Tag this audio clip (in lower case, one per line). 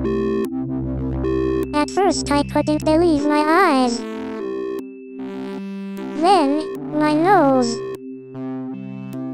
synthesizer
music
speech